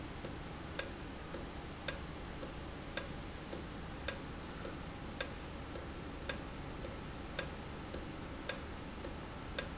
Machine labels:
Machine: valve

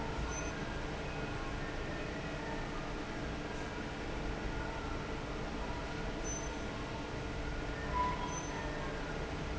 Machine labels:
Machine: fan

